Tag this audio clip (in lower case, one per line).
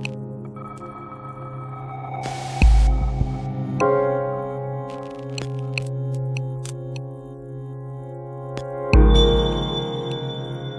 music